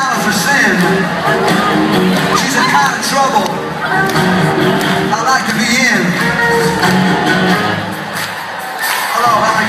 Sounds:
speech
music

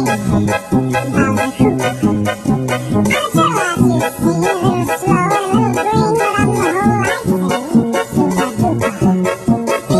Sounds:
music

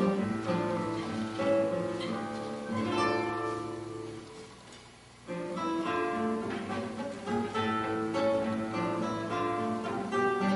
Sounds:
strum
plucked string instrument
musical instrument
music
guitar

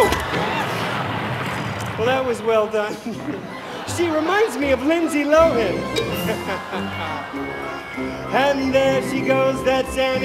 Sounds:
music
speech

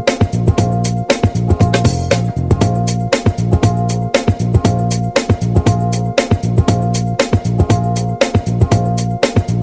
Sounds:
music

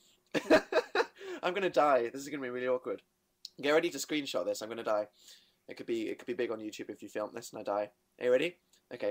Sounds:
speech

